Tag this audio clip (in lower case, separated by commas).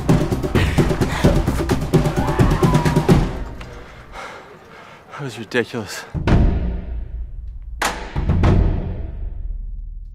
music, speech